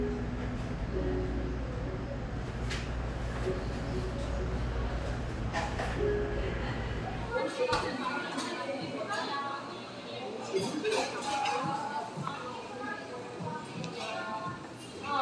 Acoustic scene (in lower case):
cafe